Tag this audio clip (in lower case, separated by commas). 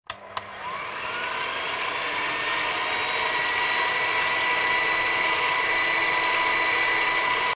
home sounds